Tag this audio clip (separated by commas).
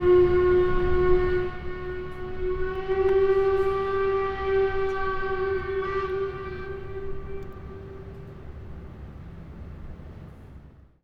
Alarm, Vehicle, Water vehicle